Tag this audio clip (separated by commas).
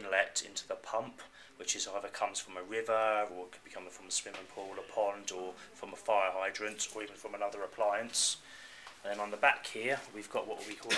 Speech